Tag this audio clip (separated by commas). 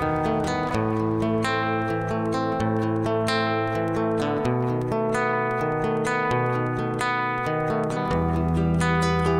Guitar, Music, Musical instrument, Plucked string instrument, Independent music, playing acoustic guitar, Acoustic guitar